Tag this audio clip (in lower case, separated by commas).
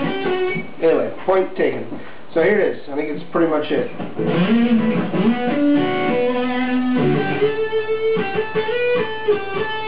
guitar, music, speech, electric guitar, musical instrument